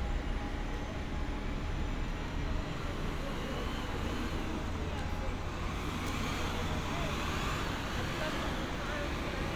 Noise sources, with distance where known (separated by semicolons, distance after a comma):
unidentified powered saw, near; person or small group talking